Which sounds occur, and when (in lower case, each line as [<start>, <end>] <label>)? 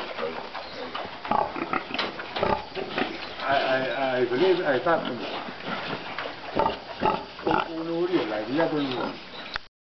[0.00, 0.47] oink
[0.00, 9.66] mechanisms
[0.55, 1.08] bird call
[0.67, 0.94] oink
[0.89, 1.05] generic impact sounds
[1.21, 3.21] oink
[1.92, 2.11] generic impact sounds
[2.12, 4.08] bird call
[3.36, 5.18] man speaking
[4.29, 5.23] oink
[5.59, 6.26] oink
[6.14, 6.23] tick
[6.47, 6.80] oink
[6.95, 7.26] oink
[7.32, 9.18] man speaking
[7.38, 7.70] oink
[8.40, 9.54] bird call
[8.47, 9.18] oink
[8.88, 8.95] tick
[9.40, 9.58] tick